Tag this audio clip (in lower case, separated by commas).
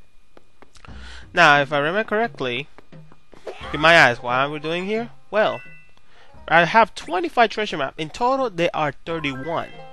speech